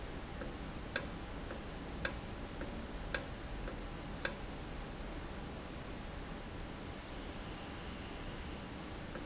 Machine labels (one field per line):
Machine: valve